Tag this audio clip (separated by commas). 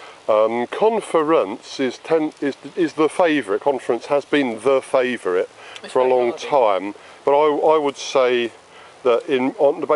outside, rural or natural, Speech